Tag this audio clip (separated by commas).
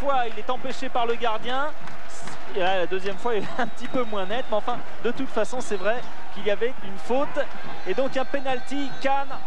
Speech